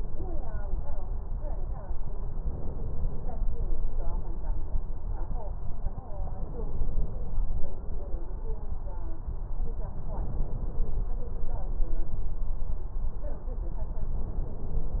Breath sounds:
Inhalation: 2.36-3.35 s, 6.32-7.17 s, 10.15-11.01 s, 14.21-15.00 s

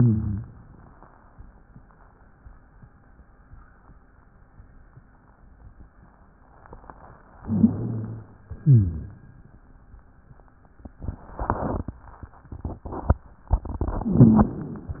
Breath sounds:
Inhalation: 7.38-8.43 s
Exhalation: 8.61-9.32 s
Rhonchi: 0.00-0.53 s, 7.38-8.43 s, 8.61-9.32 s

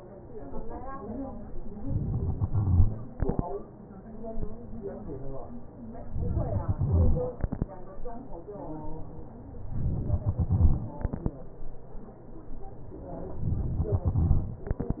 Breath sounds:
Inhalation: 1.83-2.38 s, 6.13-6.73 s, 9.72-10.16 s, 13.44-13.98 s
Exhalation: 2.38-3.43 s, 6.73-7.72 s, 10.16-11.47 s, 13.98-15.00 s

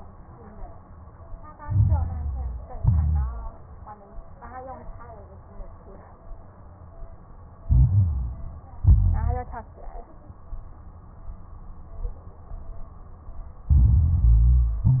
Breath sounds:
Inhalation: 1.59-2.71 s, 7.64-8.81 s, 13.70-14.88 s
Exhalation: 2.73-3.51 s, 8.84-9.71 s, 14.86-15.00 s
Crackles: 1.59-2.71 s, 2.73-3.51 s, 7.64-8.81 s, 8.84-9.71 s, 13.70-14.88 s, 14.90-15.00 s

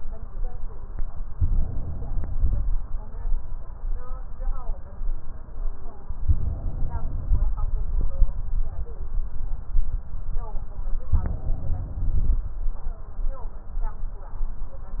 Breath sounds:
Inhalation: 1.33-2.72 s, 6.25-7.52 s, 11.16-12.44 s

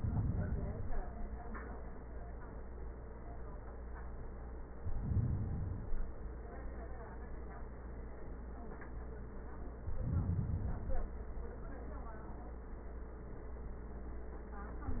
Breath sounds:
Inhalation: 0.00-1.10 s, 4.81-6.19 s, 9.79-11.16 s

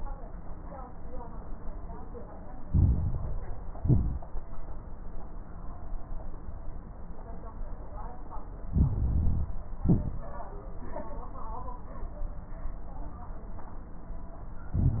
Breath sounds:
Inhalation: 2.64-3.76 s, 8.68-9.54 s, 14.71-15.00 s
Exhalation: 3.78-4.39 s, 9.80-10.45 s
Crackles: 2.64-3.76 s, 3.78-4.39 s, 8.68-9.54 s, 9.80-10.45 s, 14.71-15.00 s

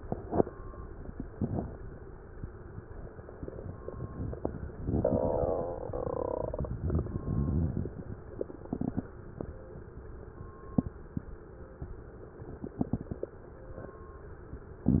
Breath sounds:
Exhalation: 0.00-0.44 s

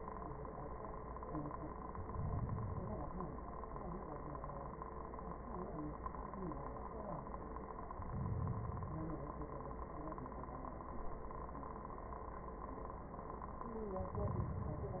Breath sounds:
Inhalation: 1.74-3.24 s, 7.90-9.29 s, 14.00-15.00 s

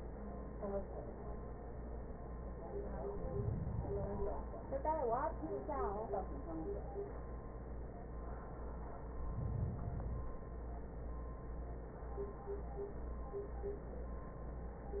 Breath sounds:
Inhalation: 3.03-4.53 s
Exhalation: 8.99-10.49 s

